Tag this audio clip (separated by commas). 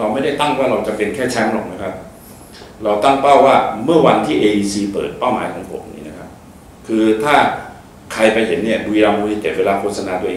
Speech